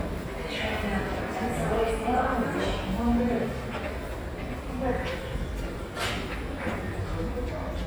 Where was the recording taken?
in a subway station